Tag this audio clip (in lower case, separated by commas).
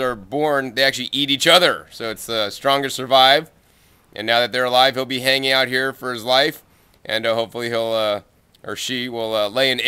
speech